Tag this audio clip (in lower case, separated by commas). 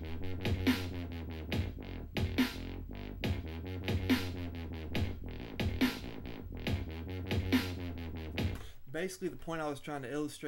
speech, dubstep, electronic music, music